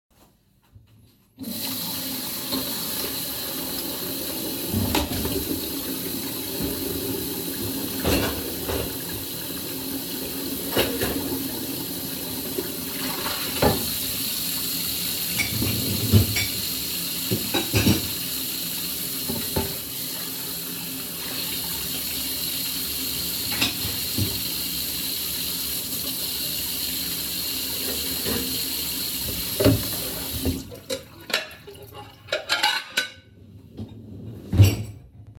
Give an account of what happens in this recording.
I turned on the tap washed dishes turned off the tap